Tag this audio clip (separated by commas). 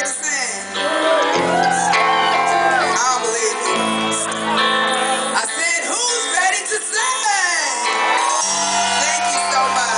inside a large room or hall, Shout, Music, Singing